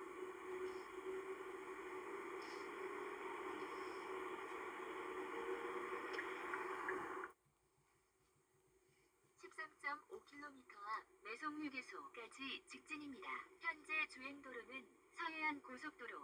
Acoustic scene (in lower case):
car